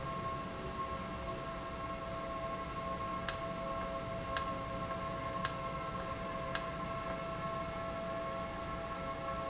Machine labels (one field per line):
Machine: valve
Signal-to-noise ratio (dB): -6 dB